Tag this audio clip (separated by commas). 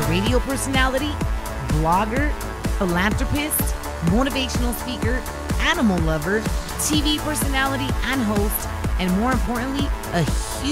Speech, Music